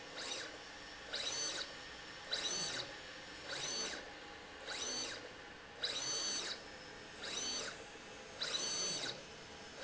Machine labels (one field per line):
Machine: slide rail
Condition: abnormal